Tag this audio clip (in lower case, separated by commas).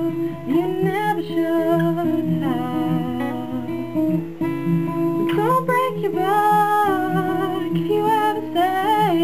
acoustic guitar, guitar, musical instrument, strum, plucked string instrument, music